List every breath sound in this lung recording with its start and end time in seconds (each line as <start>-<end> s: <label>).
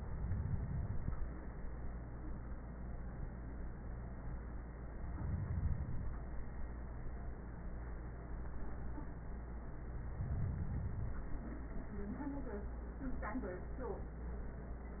No breath sounds were labelled in this clip.